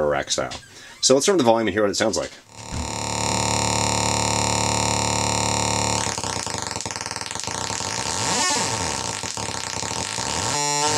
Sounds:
Effects unit, Speech

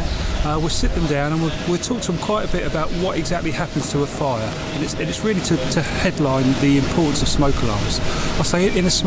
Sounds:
Speech

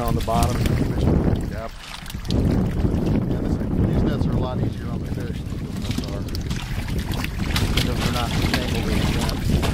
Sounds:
Wind, Wind noise (microphone)

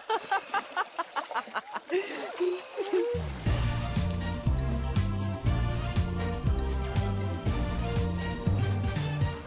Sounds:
Gurgling, Music

